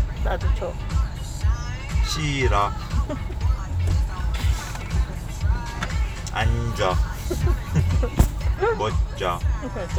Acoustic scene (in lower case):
car